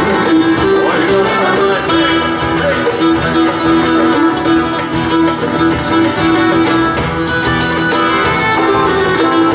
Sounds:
Music

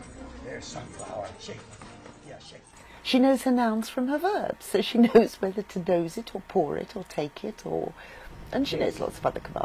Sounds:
Speech

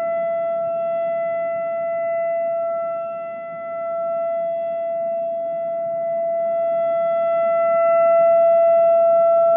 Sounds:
Siren

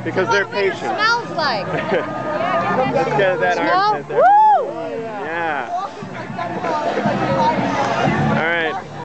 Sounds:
Speech

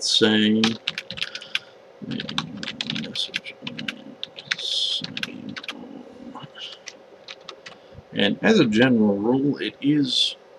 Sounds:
Computer keyboard, Speech

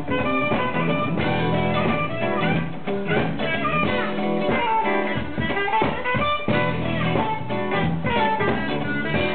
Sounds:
Blues, Music

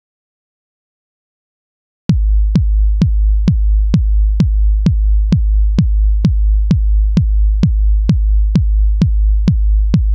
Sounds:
Techno

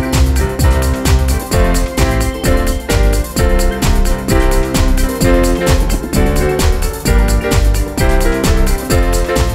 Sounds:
Electronic music, Techno, Music

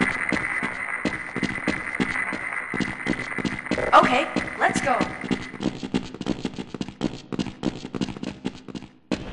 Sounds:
Speech

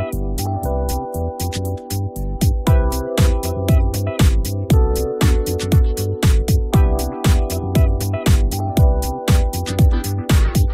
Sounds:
Music

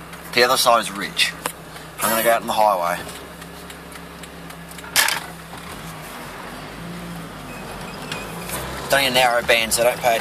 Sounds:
Vehicle, Car, Speech

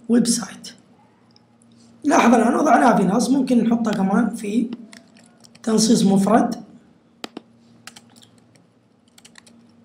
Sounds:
Speech

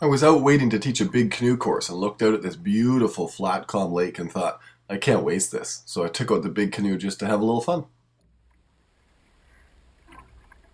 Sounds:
Speech

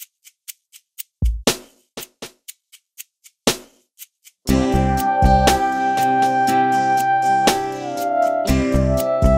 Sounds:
Music

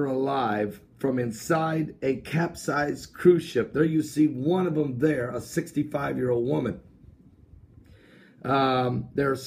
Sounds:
Speech

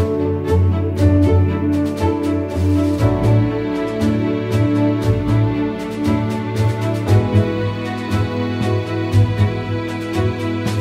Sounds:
Background music

